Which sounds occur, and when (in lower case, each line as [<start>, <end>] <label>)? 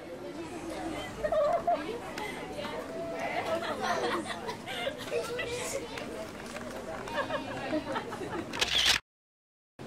[0.00, 8.48] speech babble
[0.00, 8.51] background noise
[2.11, 2.19] tick
[3.55, 5.32] laughter
[5.89, 5.98] tick
[6.96, 8.49] laughter
[8.49, 8.98] camera